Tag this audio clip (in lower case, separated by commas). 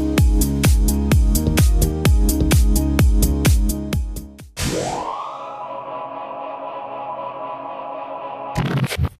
music